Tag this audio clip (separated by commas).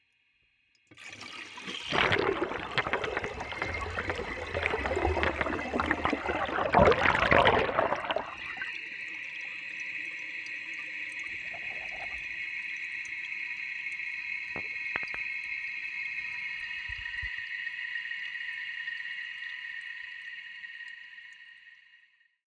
Domestic sounds, Toilet flush